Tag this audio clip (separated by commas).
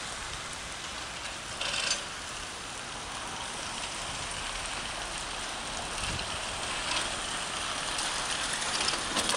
Bus, Rain on surface, Vehicle